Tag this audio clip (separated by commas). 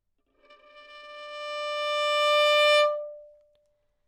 Musical instrument, Music, Bowed string instrument